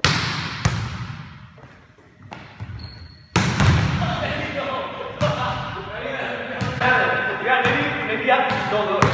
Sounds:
basketball bounce

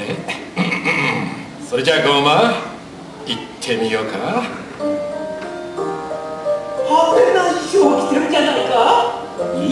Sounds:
speech, music

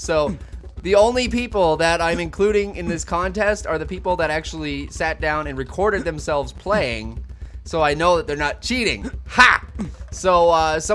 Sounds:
speech

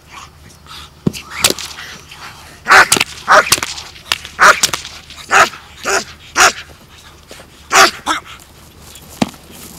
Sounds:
bow-wow, animal, pets, dog

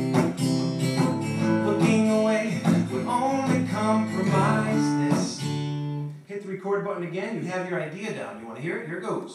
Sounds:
music, plucked string instrument, speech, strum, acoustic guitar, musical instrument, guitar

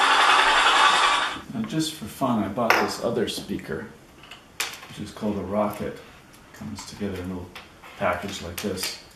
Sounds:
speech

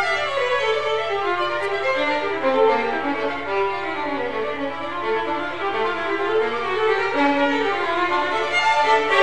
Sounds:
musical instrument, music, fiddle

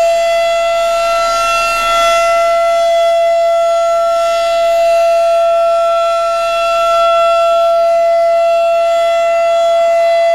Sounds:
siren, civil defense siren

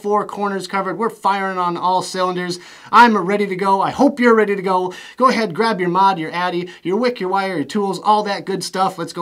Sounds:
speech

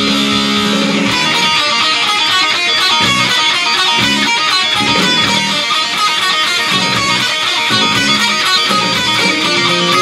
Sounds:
strum, music, guitar, plucked string instrument, electric guitar, musical instrument

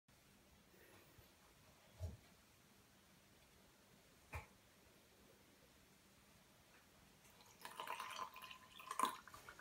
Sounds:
inside a small room

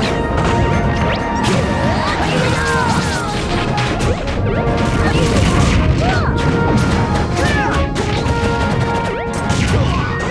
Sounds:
crash, music

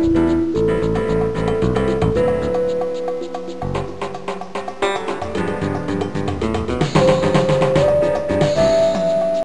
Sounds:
jazz, music

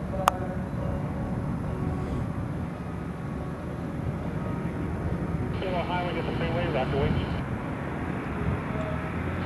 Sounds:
speech, vehicle, aircraft, propeller, field recording, airplane

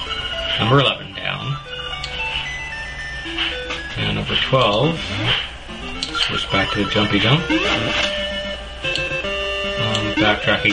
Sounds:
music, speech, inside a small room

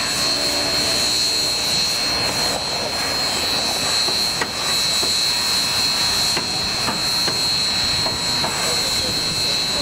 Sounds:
train, rail transport, steam, vehicle

